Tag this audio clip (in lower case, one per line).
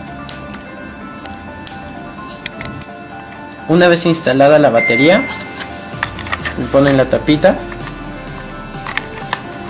alarm clock ringing